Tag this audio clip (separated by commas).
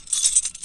home sounds, Keys jangling